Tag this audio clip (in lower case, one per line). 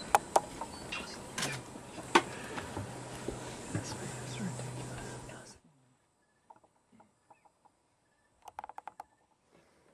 animal
speech